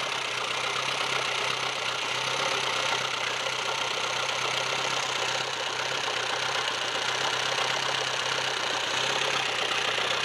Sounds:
Vehicle

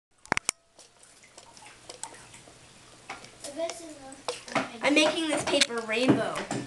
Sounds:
Speech

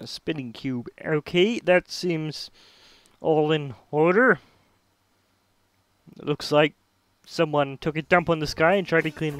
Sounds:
Speech, Music

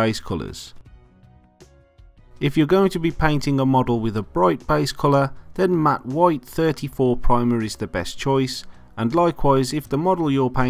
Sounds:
Music, Speech

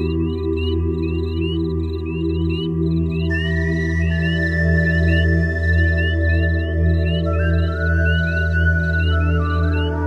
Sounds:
Music, Animal

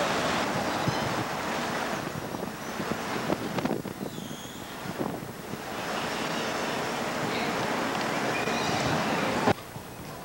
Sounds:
Wind noise (microphone)

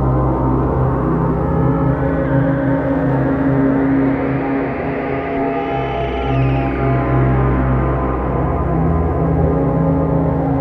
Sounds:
Music, Electronic music, Scary music, Ambient music

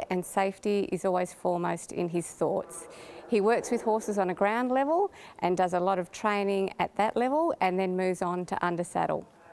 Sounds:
Speech

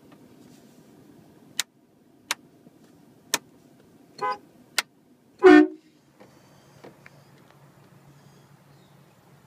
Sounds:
Vehicle horn, Vehicle, Car

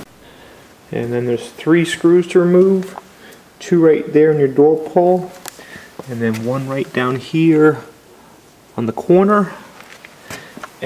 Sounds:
Speech

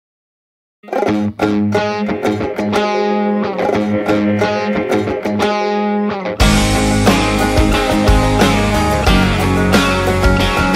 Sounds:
Music, Country

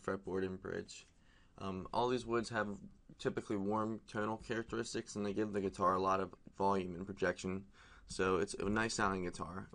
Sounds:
Speech

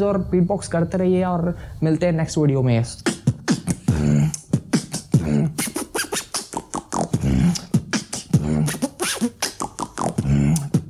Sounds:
beat boxing

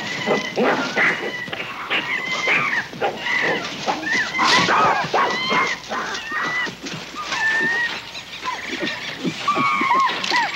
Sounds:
chimpanzee pant-hooting

